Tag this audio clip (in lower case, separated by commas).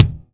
music, drum, musical instrument, percussion, bass drum